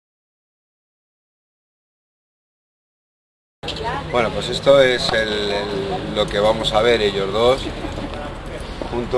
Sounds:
Speech

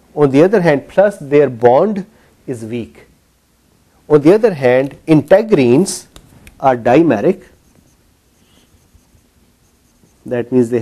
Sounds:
Speech, inside a large room or hall

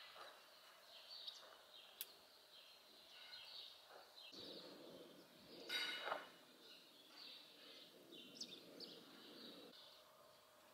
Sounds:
barn swallow calling

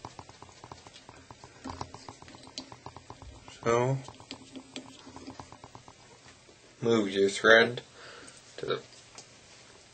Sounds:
Speech

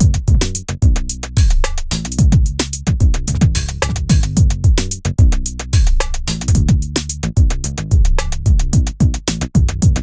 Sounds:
Music

